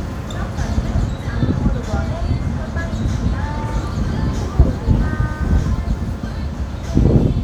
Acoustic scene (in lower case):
street